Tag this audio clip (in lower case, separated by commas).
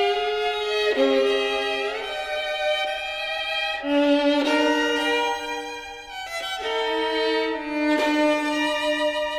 music, violin, musical instrument